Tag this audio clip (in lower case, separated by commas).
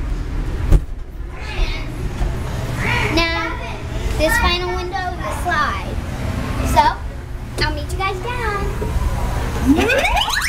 child speech, speech